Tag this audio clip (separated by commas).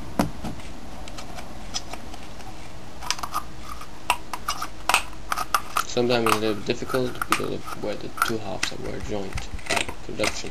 Speech